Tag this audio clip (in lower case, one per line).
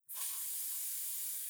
hiss